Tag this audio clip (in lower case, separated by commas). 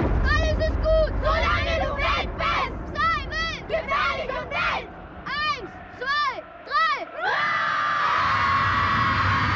people battle cry